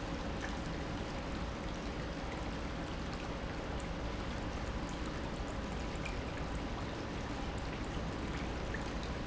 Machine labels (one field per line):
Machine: pump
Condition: normal